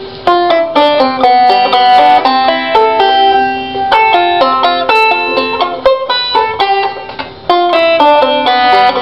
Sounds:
playing banjo, Music, Banjo

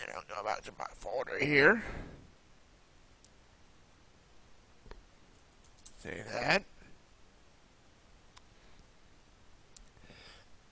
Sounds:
Speech

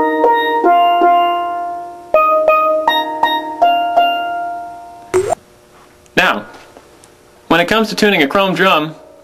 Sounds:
playing steelpan

